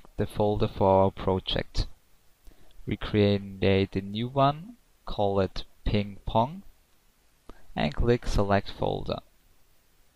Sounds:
speech

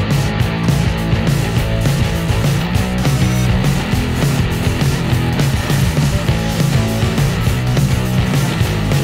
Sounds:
music

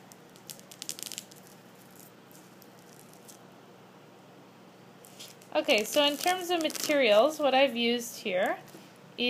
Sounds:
speech

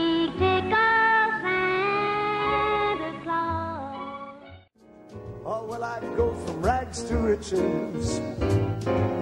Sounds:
music
tender music

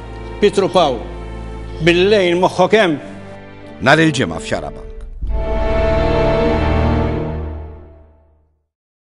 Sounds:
music
speech

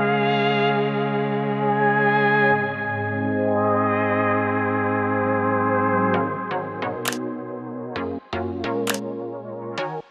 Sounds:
electronic music
music

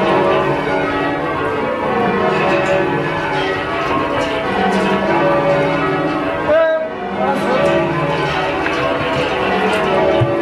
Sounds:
speech
music

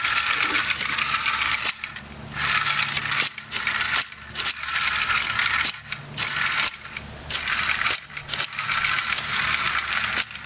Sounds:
inside a small room

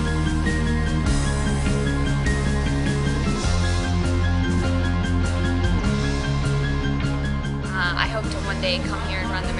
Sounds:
speech
music

